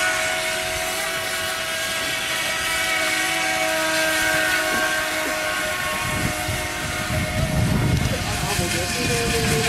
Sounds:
Speech

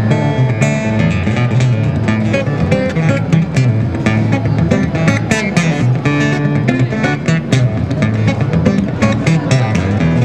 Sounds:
Music, Guitar, Plucked string instrument, Musical instrument, Strum

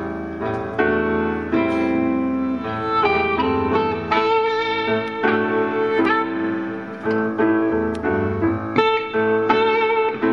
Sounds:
Guitar, Music, Musical instrument

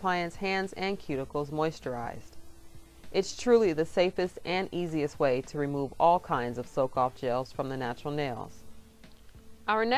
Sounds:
Music, Speech

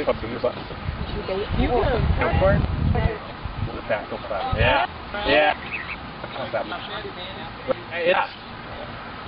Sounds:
Speech

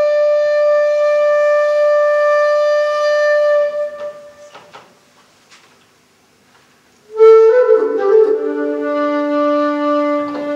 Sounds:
Musical instrument, Music, Flute, Wind instrument

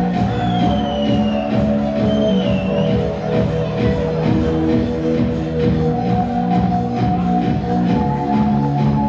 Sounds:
Techno, Electronic music, Music

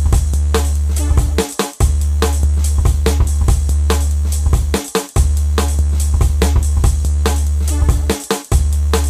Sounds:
Drum kit, Rimshot, Drum, Percussion

